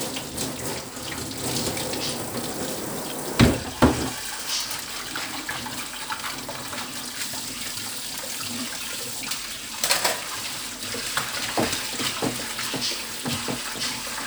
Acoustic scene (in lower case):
kitchen